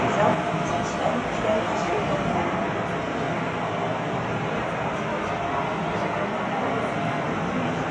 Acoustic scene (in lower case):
subway train